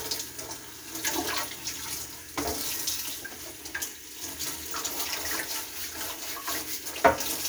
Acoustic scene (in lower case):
kitchen